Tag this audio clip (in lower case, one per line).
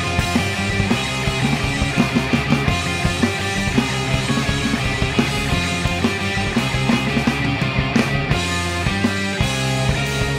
music
house music